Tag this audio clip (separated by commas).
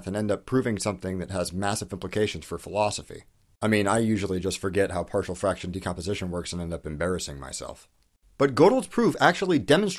Speech